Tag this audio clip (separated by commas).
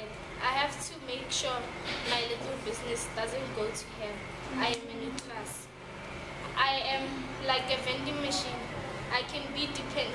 Speech